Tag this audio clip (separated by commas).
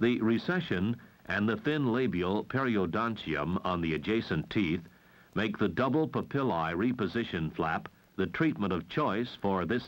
Speech